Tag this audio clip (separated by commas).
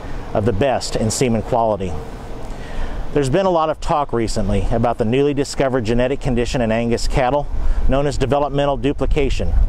Speech